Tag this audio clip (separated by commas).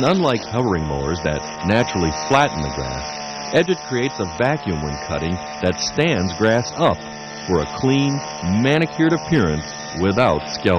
Tools, Speech